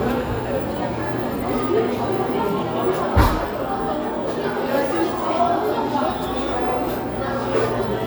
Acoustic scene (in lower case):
cafe